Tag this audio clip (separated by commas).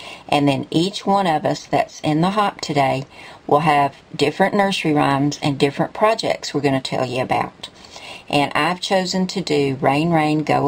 Speech